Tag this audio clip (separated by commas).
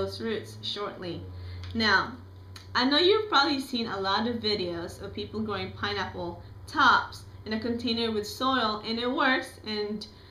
Speech